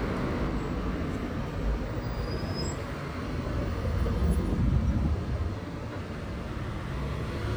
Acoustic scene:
street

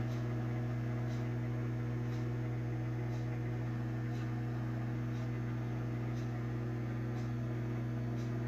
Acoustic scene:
kitchen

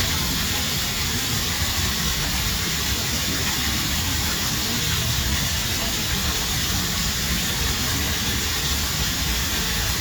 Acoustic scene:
park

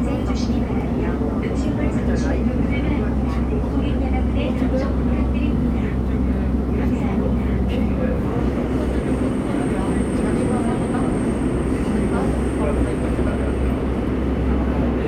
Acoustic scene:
subway train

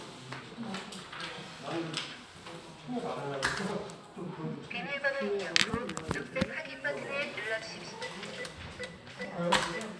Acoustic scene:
crowded indoor space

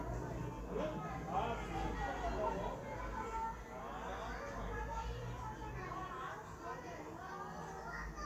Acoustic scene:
residential area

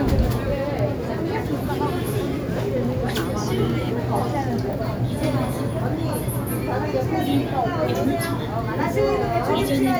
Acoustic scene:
crowded indoor space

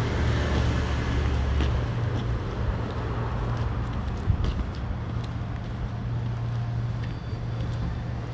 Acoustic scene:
residential area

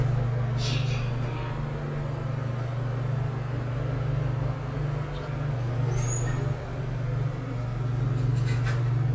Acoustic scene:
elevator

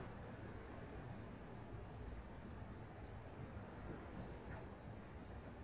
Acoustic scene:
residential area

